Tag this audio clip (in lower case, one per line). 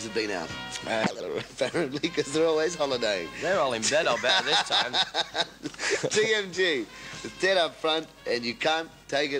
speech